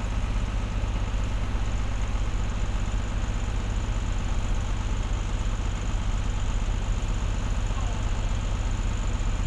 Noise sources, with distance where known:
engine of unclear size, near

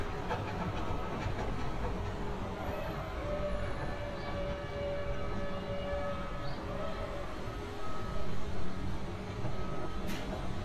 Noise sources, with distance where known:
reverse beeper

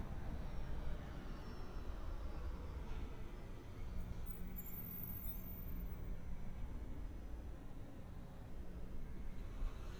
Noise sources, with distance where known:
medium-sounding engine

